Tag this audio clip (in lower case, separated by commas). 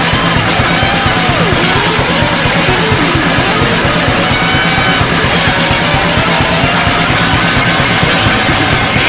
bass guitar, electric guitar, music, musical instrument, guitar, plucked string instrument